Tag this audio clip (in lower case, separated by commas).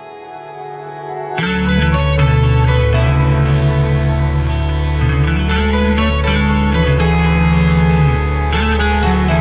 music